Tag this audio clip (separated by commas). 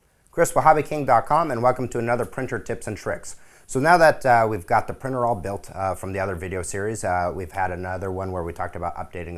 Speech